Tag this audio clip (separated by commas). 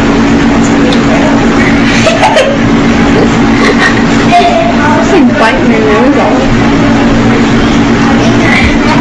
Speech